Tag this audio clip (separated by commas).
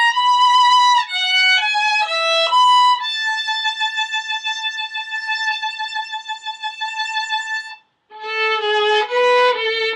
fiddle, Music, Musical instrument